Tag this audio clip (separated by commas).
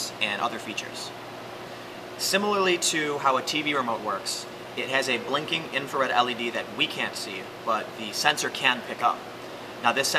Speech